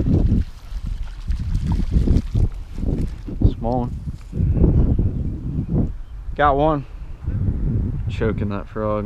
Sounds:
outside, rural or natural, speech

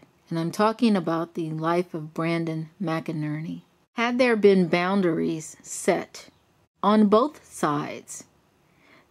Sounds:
narration

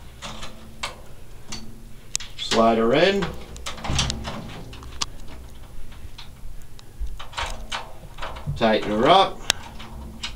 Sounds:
speech

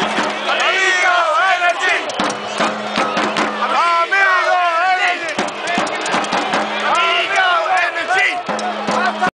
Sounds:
music, speech

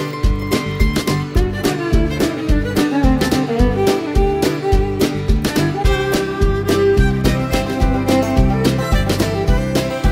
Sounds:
music

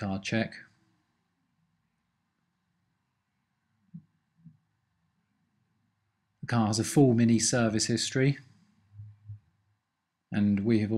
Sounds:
speech

